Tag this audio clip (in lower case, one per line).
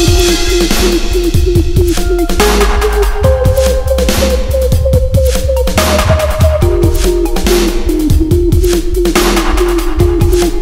dubstep
music
electronic music